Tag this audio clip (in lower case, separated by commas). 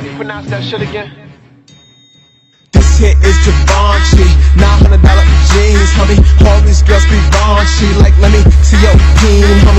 music